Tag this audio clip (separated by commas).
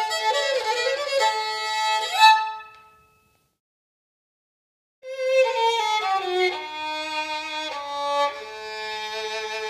Music, Musical instrument, Violin